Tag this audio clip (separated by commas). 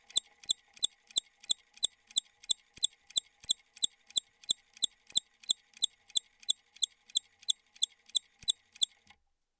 Mechanisms